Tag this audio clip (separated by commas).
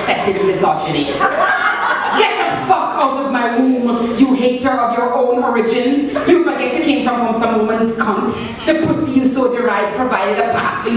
Speech